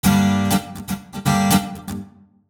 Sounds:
musical instrument
plucked string instrument
music
guitar

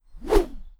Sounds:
whoosh

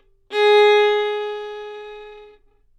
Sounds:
music
musical instrument
bowed string instrument

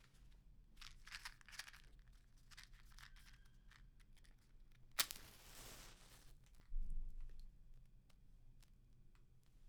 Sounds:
fire

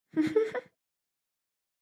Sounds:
laughter
human voice

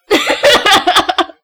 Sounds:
human voice
laughter

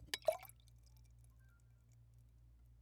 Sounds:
liquid

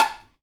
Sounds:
tap

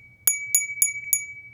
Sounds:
glass
bell

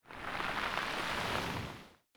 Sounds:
water
ocean
waves

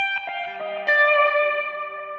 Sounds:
guitar
plucked string instrument
music
musical instrument

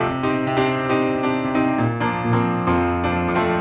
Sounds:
musical instrument
keyboard (musical)
piano
music

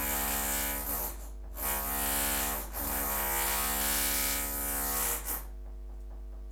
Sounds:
tools

